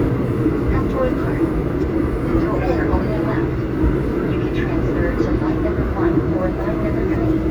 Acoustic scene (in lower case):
subway train